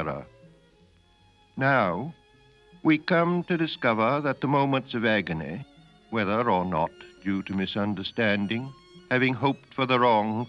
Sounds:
Music, Speech

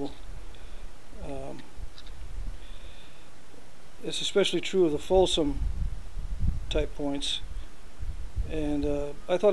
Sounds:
Speech

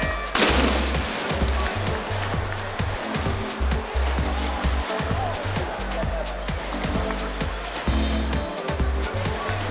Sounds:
Water, Music

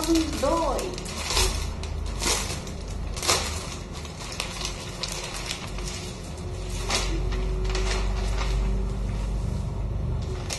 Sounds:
Speech, inside a small room

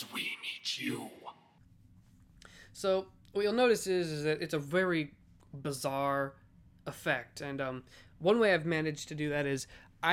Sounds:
Speech

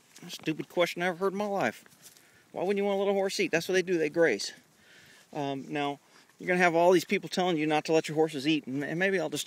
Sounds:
Speech

